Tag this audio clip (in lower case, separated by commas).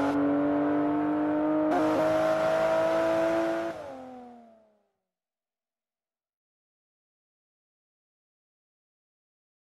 car, motor vehicle (road), car passing by, vehicle